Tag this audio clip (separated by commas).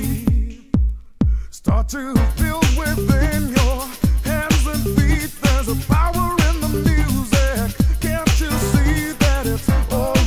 Music